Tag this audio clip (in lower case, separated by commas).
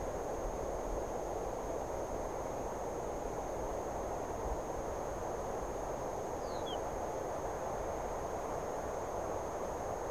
animal, bird